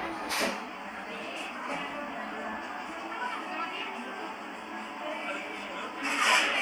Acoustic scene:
cafe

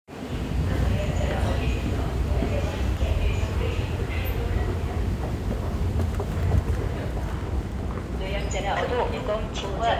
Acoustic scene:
subway station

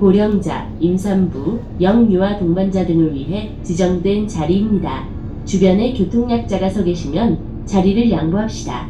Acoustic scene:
bus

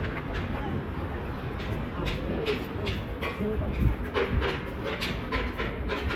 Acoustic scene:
residential area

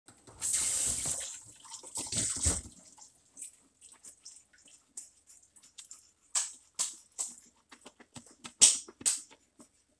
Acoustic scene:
restroom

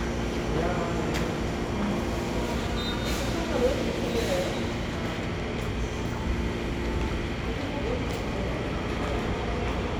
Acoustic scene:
subway station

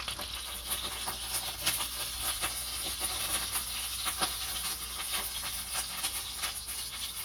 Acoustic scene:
kitchen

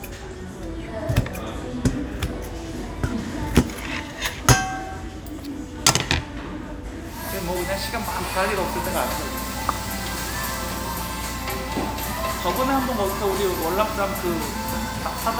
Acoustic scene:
restaurant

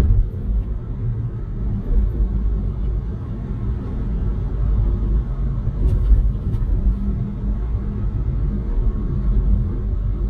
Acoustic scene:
car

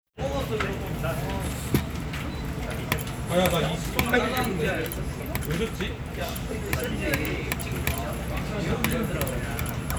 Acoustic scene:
crowded indoor space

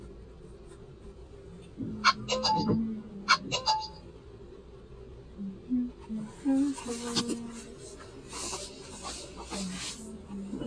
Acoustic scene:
car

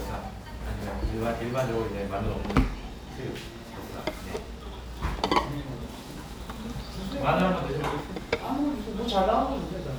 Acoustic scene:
restaurant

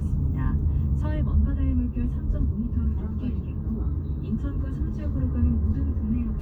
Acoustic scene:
car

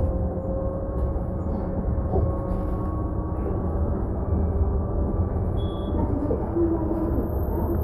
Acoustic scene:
bus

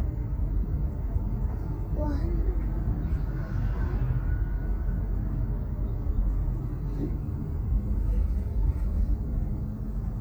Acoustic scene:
car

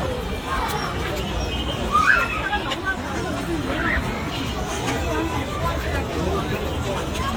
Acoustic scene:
park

